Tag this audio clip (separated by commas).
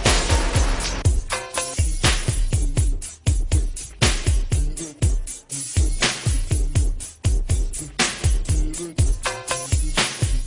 Funk